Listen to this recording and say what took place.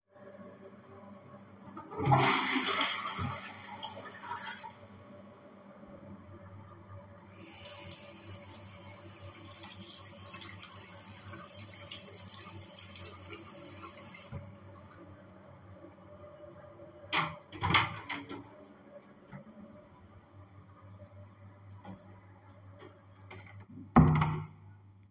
I flushed the toilet, washed my hands, then opend the door, left the room and closed the door behind me. During that time the ventilation is clearly hearable.